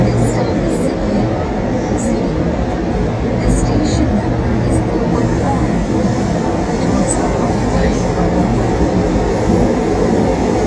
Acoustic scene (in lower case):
subway train